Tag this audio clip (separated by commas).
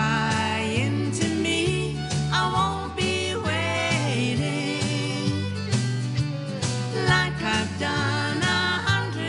Country, Music